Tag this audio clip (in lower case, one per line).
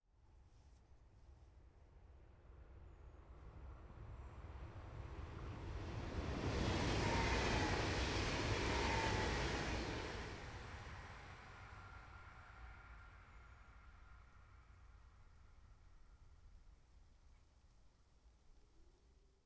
rail transport
vehicle
train